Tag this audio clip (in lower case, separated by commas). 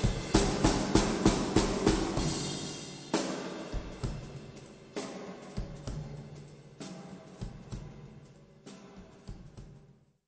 music, timpani